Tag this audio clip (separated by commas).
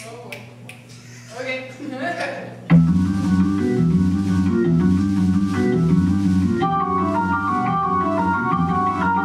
Speech, Music